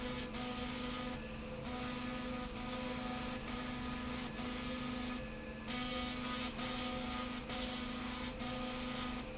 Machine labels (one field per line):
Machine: slide rail